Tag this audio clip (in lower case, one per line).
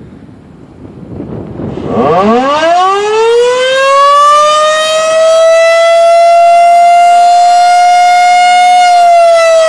siren
civil defense siren